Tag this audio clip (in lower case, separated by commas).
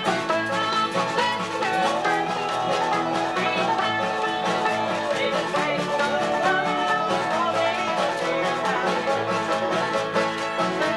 playing banjo, banjo, music, country, bowed string instrument, bluegrass, musical instrument, guitar